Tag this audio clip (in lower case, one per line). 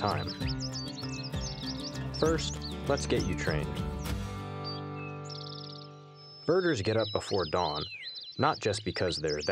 tweet
bird song
bird